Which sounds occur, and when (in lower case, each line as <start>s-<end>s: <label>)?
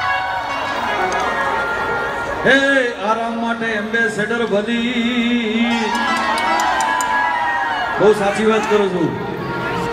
0.0s-1.2s: whoop
0.0s-9.9s: crowd
0.0s-9.9s: music
1.1s-1.2s: tick
2.4s-6.0s: male singing
4.4s-4.5s: tick
5.6s-8.2s: whoop
5.9s-6.0s: tick
6.1s-6.2s: tick
6.3s-6.4s: tick
6.6s-6.7s: tick
6.8s-6.8s: tick
7.0s-7.0s: tick
7.9s-8.9s: male speech
8.6s-8.7s: tick